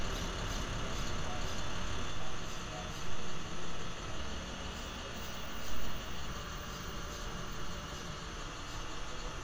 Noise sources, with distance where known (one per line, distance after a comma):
engine of unclear size, near